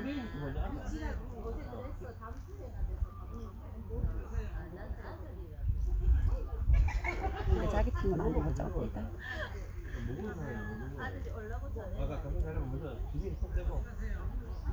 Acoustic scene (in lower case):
park